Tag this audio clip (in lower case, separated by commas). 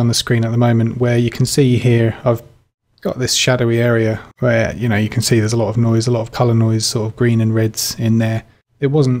speech